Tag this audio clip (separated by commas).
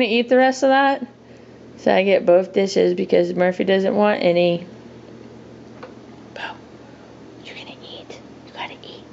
Speech, Whispering